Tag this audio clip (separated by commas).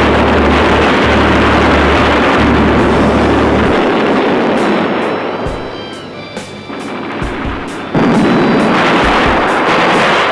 Explosion